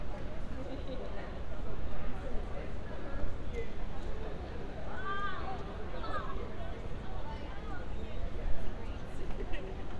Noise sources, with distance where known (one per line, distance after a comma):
person or small group talking